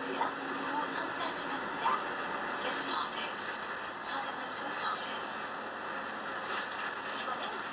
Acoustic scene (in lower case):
bus